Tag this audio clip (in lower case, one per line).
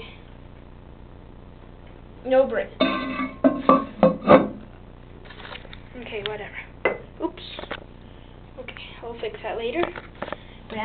speech